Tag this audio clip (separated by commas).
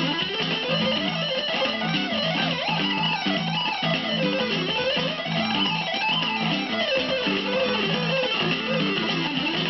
Strum, Guitar, Music, Musical instrument, Electric guitar, Plucked string instrument